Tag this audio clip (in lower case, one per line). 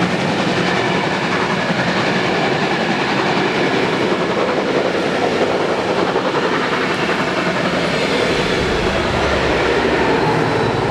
train whistling